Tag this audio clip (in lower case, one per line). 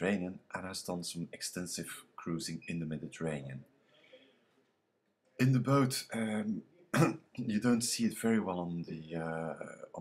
speech